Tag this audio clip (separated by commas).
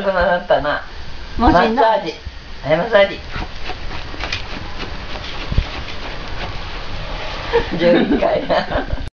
Speech